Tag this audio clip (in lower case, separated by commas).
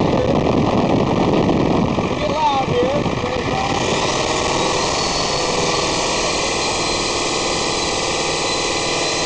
vehicle, engine, speech